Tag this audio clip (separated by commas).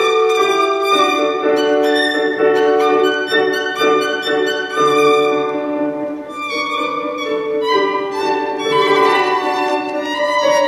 Bowed string instrument, fiddle